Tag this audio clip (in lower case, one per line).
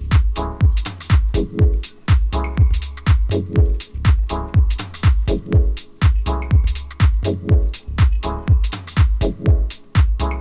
music